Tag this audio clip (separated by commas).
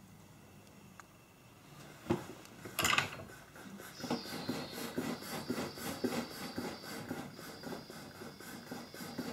blowtorch igniting